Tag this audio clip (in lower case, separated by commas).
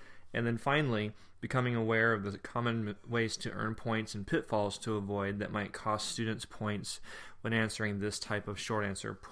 speech